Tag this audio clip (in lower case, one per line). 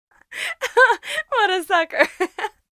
human voice
chuckle
laughter